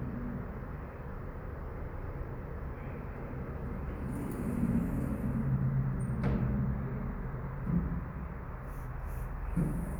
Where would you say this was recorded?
in an elevator